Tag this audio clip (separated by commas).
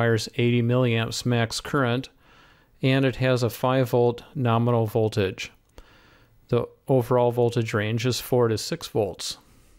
Speech